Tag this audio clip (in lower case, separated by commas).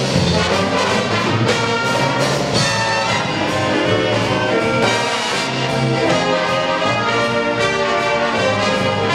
music, jazz